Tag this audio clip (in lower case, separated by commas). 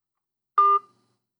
telephone, alarm